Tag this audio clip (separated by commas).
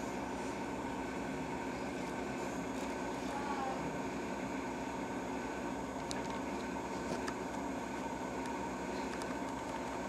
Speech